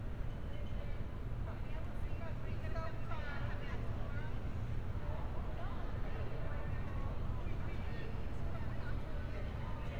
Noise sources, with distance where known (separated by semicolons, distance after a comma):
person or small group talking, far